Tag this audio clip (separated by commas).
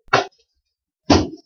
Tap